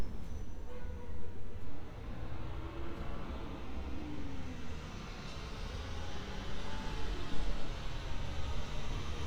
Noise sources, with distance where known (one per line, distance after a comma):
large-sounding engine, near